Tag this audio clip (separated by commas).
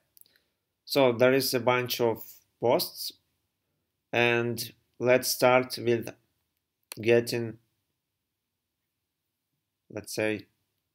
Speech